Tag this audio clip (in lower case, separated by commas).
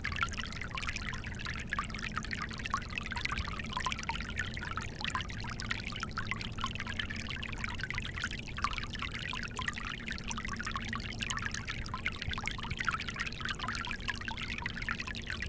stream, water